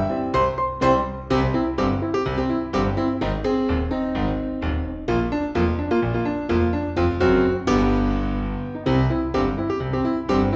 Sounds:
music

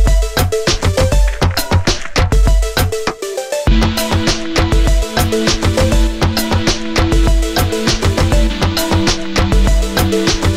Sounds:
music

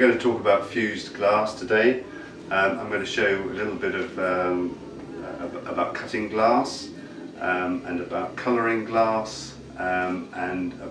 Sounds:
speech

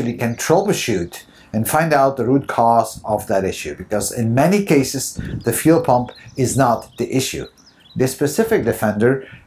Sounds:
speech

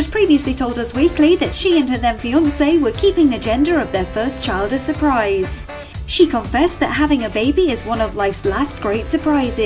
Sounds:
speech
music

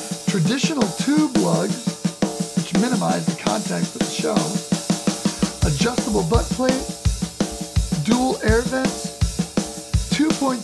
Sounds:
playing snare drum

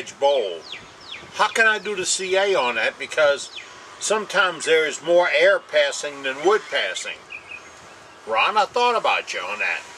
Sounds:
speech

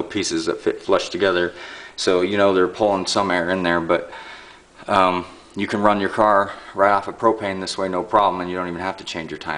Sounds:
speech

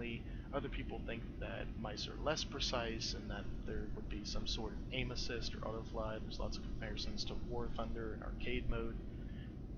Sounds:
speech

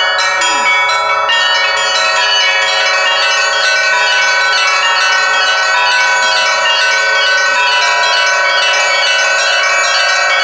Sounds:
bell

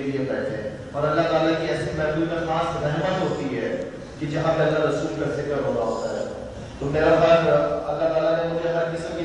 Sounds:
speech
monologue
male speech

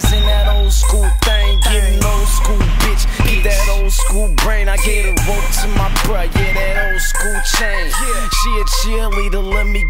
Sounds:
music

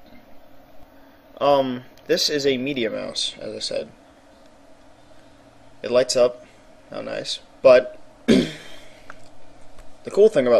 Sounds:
speech

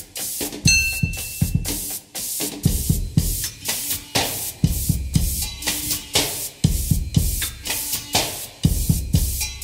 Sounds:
wood block
percussion
music

